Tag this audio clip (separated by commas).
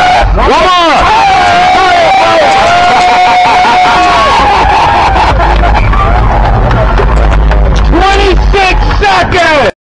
Speech